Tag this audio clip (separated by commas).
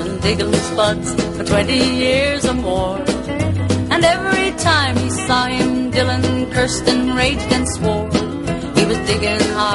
Music